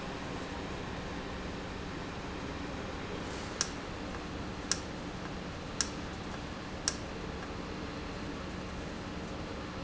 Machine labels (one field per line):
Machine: valve